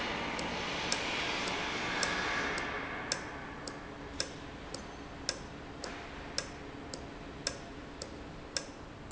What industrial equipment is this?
valve